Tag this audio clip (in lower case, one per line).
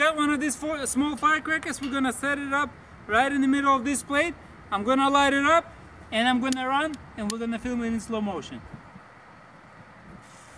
speech